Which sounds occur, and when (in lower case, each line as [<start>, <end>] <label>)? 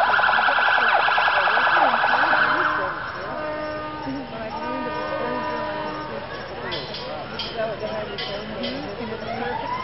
[0.00, 6.31] alarm
[0.00, 9.83] speech noise
[2.48, 2.75] cricket
[3.02, 3.28] cricket
[3.54, 3.72] cricket
[3.95, 4.21] cricket
[4.46, 4.71] cricket
[4.87, 5.14] cricket
[5.38, 5.60] cricket
[5.80, 6.11] cricket
[6.29, 6.54] cricket
[6.83, 7.06] cricket
[7.27, 7.51] cricket
[7.74, 7.94] cricket
[8.19, 8.42] cricket
[8.68, 8.92] cricket
[9.12, 9.38] cricket
[9.12, 9.83] alarm
[9.62, 9.82] cricket